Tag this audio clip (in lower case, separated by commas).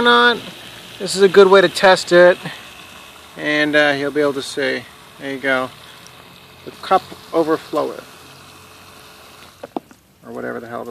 water